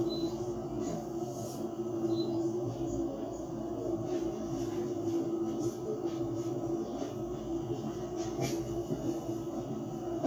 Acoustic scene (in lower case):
bus